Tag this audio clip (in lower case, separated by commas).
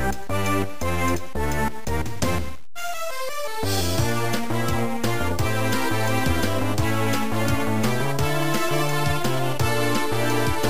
video game music, music